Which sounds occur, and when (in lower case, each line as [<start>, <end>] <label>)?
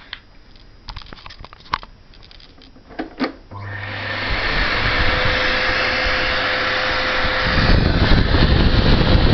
[0.00, 9.33] mechanisms
[0.01, 0.23] generic impact sounds
[0.41, 0.56] generic impact sounds
[0.84, 1.83] generic impact sounds
[2.08, 2.65] generic impact sounds
[2.84, 3.32] generic impact sounds
[3.49, 9.33] vacuum cleaner
[4.56, 5.47] wind noise (microphone)
[7.39, 9.33] wind noise (microphone)